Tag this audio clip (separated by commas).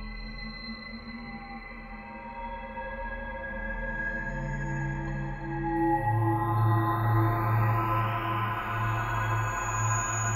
Ambient music, Electronic music, Music